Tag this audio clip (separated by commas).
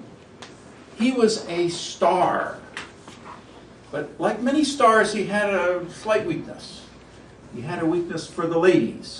Speech